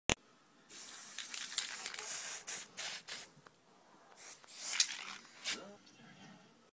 A bottle sprays as it moves around and something rustles as it is being shook